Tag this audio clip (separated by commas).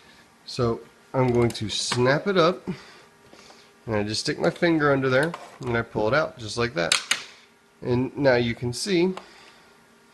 Speech